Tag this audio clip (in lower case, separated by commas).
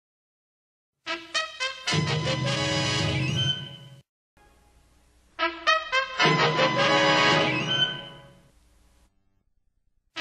music